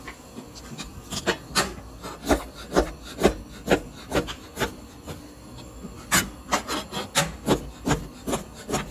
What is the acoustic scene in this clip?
kitchen